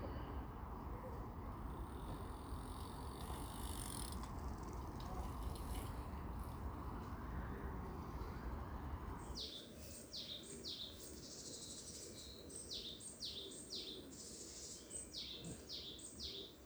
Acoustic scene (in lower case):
park